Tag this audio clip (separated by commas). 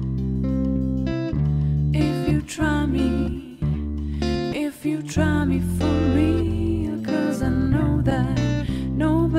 Music